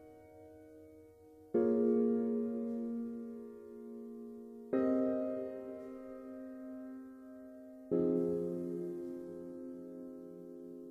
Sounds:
music
sound effect

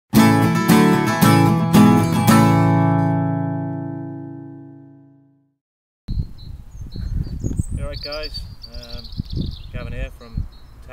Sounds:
speech
music

